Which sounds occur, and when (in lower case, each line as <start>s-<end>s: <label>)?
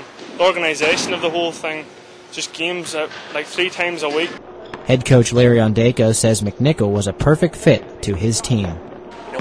0.0s-9.4s: mechanisms
0.1s-0.3s: generic impact sounds
0.3s-1.8s: man speaking
0.7s-1.1s: generic impact sounds
2.3s-3.1s: man speaking
2.8s-3.0s: basketball bounce
3.3s-4.4s: man speaking
3.4s-3.6s: basketball bounce
4.7s-4.8s: basketball bounce
4.9s-7.8s: man speaking
8.0s-8.8s: man speaking
8.6s-8.8s: basketball bounce
9.3s-9.4s: basketball bounce